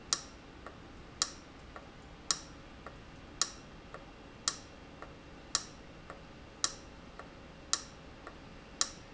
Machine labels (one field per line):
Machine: valve